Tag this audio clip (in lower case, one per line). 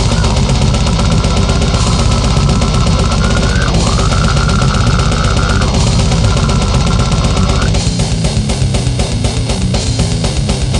music